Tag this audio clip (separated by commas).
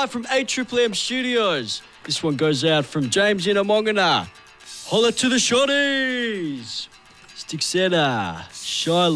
Speech, Music